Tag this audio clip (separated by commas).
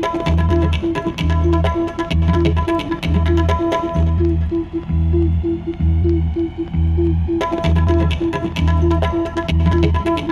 Music